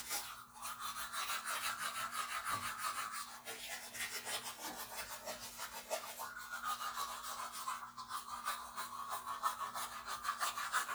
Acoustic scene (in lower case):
restroom